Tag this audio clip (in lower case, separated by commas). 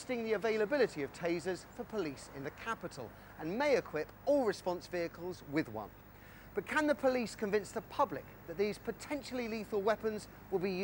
speech